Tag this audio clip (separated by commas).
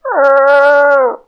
pets, Animal, Dog